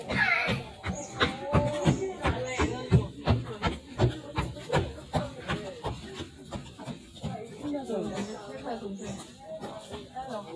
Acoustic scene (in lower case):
park